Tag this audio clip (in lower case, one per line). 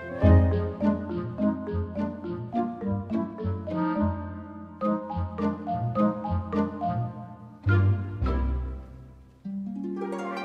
music